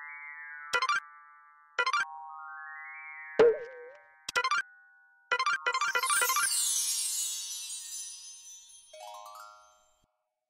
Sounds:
music

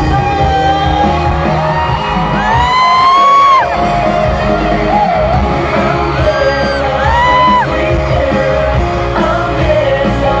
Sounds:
crowd, pop music, music, whoop

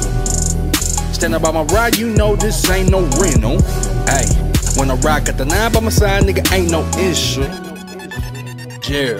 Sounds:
music

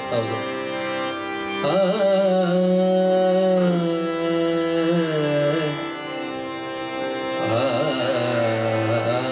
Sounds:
music, male singing

